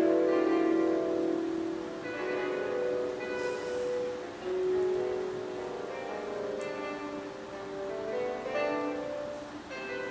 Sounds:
Music, Harpsichord

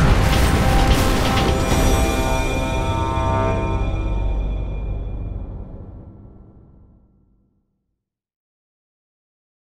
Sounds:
Music

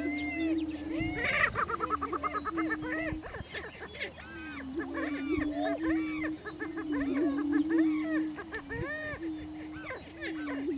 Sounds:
rooster, Cluck

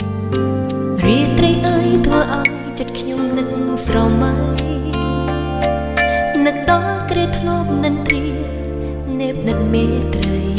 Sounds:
Music

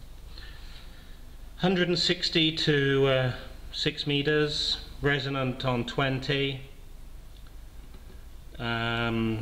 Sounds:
Speech

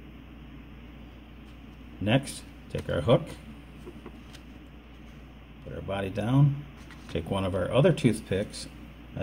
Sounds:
Speech

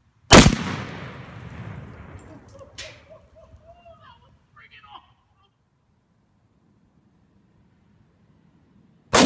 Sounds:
Firecracker, Speech

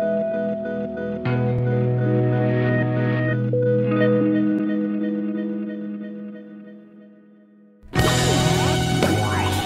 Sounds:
Music

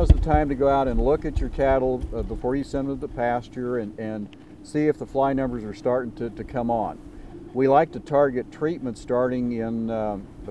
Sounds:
Speech

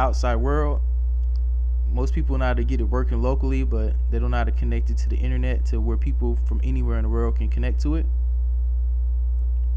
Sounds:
Speech

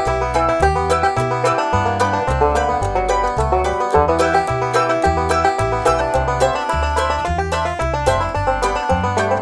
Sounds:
Country, Music, Bluegrass

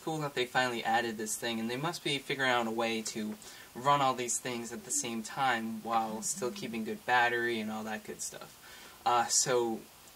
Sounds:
Speech

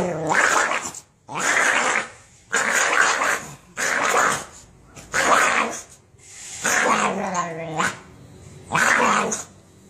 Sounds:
dog growling

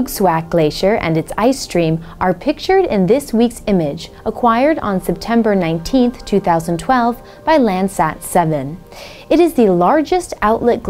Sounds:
Speech, Music

